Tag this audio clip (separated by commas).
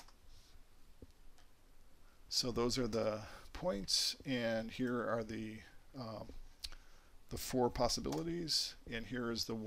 Speech, Silence